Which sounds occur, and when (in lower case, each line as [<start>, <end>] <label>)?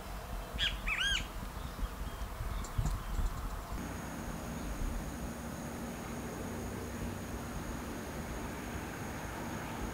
[0.00, 9.93] wind
[0.49, 1.19] wind noise (microphone)
[0.52, 1.21] bird call
[1.33, 1.82] wind noise (microphone)
[1.37, 1.48] tick
[1.50, 3.35] bird call
[1.99, 3.31] wind noise (microphone)
[2.14, 2.23] tick
[2.59, 2.92] tick
[3.06, 3.79] generic impact sounds
[3.77, 9.93] mechanisms
[4.51, 4.75] tick